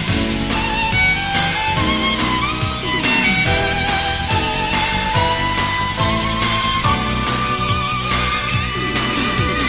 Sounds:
musical instrument, music, violin

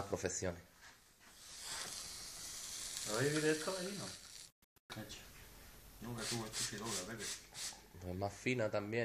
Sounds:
speech

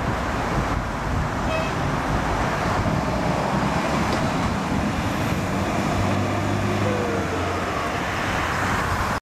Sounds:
fire engine

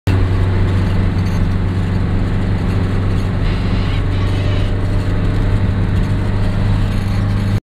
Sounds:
car, vehicle

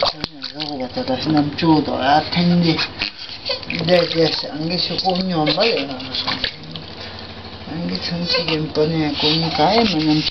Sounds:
speech, inside a small room

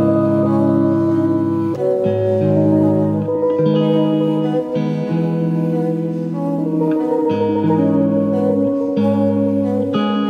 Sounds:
music, outside, rural or natural, steel guitar

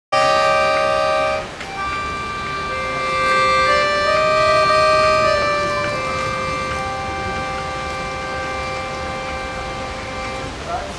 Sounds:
music, accordion

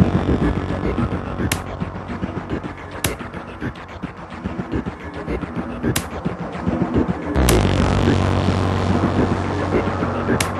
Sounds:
music, electronica

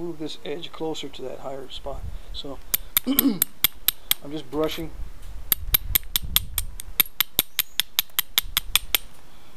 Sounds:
speech

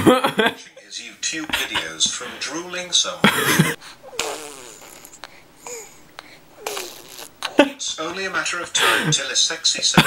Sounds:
inside a small room, speech

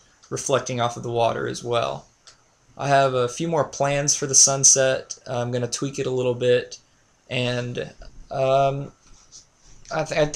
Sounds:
speech

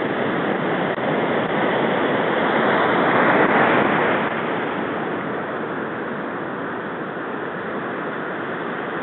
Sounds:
ocean, ocean burbling, waves

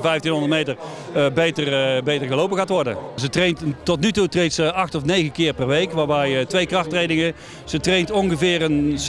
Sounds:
outside, urban or man-made, speech

